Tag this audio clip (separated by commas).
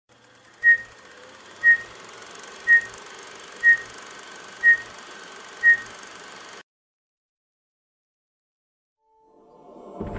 Silence